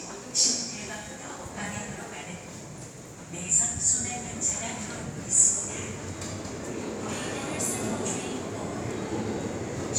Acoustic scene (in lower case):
subway station